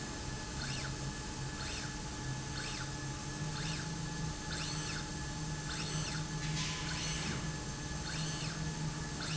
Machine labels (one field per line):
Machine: slide rail